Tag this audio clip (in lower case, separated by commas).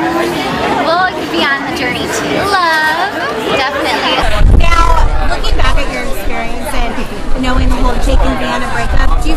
speech